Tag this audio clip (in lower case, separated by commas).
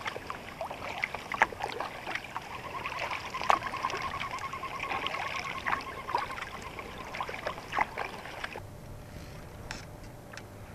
water vehicle, vehicle, rowboat, kayak rowing